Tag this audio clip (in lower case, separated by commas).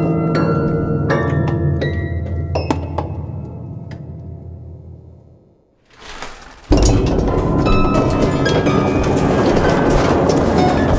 music